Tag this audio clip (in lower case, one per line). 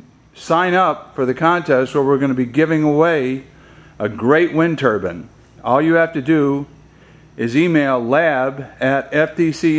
speech